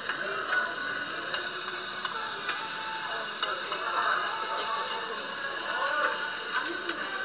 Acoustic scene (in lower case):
restaurant